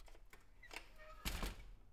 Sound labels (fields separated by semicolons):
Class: window; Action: opening